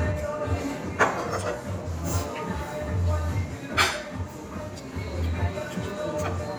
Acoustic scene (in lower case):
restaurant